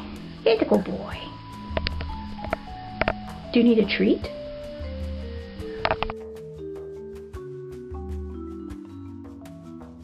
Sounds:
Speech, Music

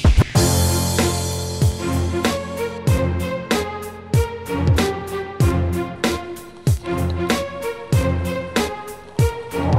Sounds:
Music

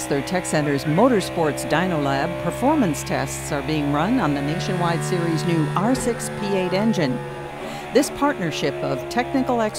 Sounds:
Speech

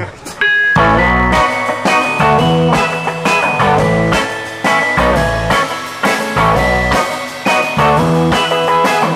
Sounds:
Music

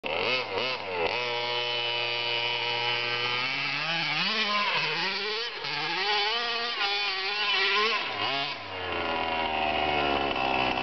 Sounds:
outside, rural or natural

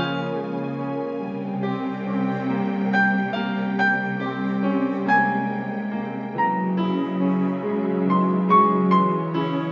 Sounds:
Music, Tender music

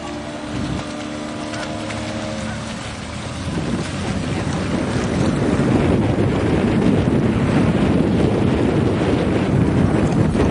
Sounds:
Boat, Vehicle

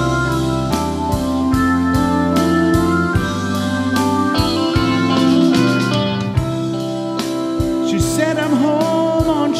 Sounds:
playing hammond organ

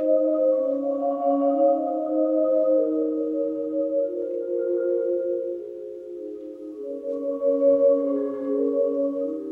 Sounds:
Music, Vibraphone, playing marimba, Marimba, Musical instrument

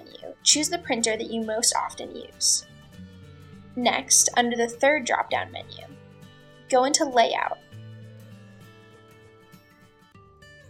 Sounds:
Music, Speech

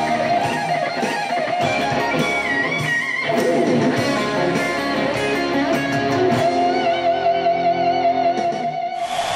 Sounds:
Music, Musical instrument, Plucked string instrument, Electric guitar, Guitar

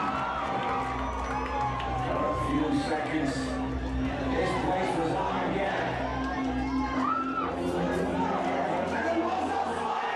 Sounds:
Speech

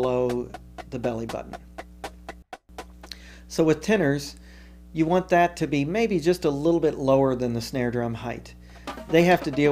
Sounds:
Wood block, Speech, Music

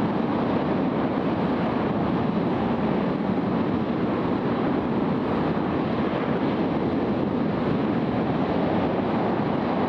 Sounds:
Engine, Heavy engine (low frequency)

